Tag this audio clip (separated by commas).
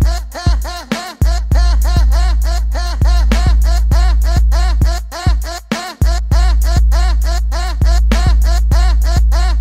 Music